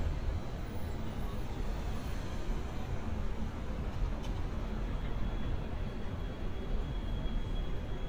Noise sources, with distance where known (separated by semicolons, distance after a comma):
large-sounding engine